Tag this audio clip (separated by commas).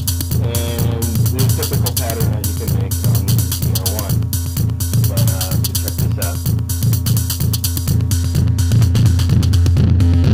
Speech, Music, Synthesizer, Sampler